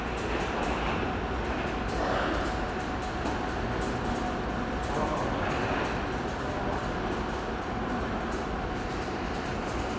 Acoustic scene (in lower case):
subway station